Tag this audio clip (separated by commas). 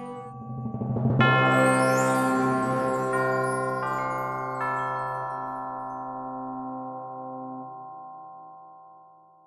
Chime